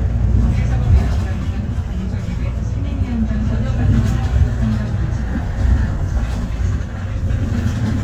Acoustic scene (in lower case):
bus